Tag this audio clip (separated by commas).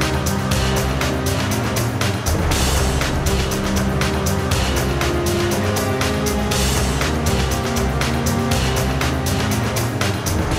Music